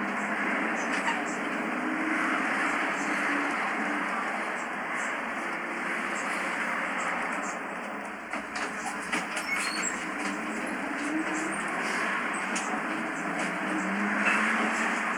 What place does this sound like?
bus